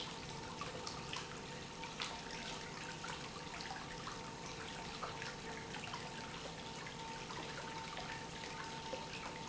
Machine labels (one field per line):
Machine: pump